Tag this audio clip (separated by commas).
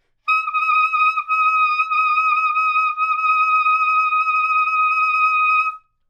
Music, Wind instrument, Musical instrument